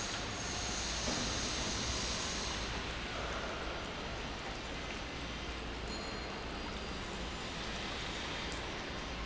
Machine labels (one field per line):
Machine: pump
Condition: abnormal